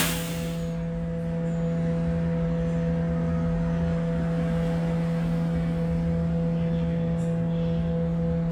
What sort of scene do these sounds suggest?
bus